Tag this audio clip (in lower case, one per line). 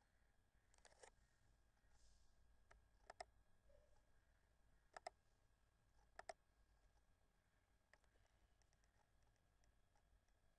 clicking